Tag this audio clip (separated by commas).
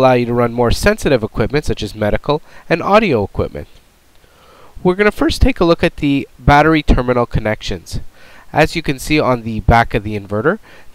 Speech